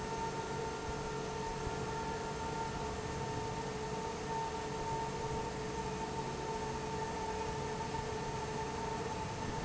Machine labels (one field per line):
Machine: fan